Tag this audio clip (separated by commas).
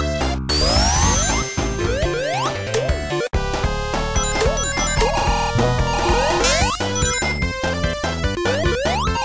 Soundtrack music